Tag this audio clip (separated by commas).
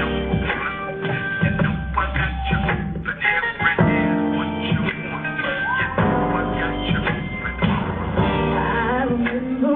Music